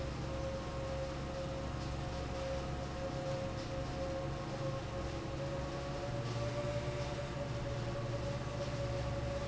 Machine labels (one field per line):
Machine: fan